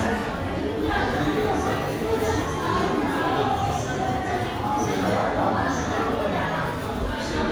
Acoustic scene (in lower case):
crowded indoor space